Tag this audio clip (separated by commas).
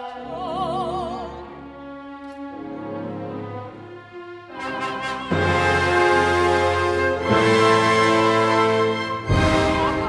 Music, Opera